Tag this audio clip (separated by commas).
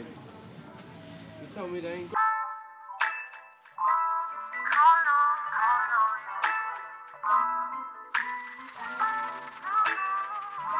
Speech, Music